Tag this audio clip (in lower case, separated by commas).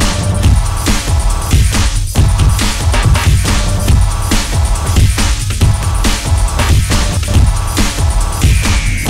dubstep